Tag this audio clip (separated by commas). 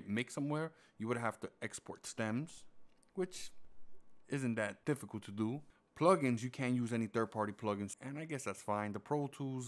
Speech